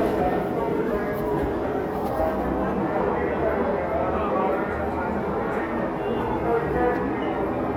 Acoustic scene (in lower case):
crowded indoor space